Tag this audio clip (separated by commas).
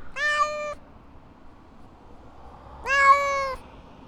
Cat, Animal, Meow, Domestic animals